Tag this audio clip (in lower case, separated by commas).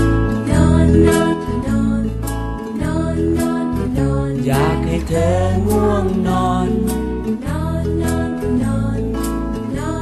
music